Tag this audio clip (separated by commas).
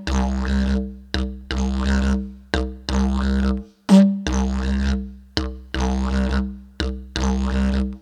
Musical instrument, Music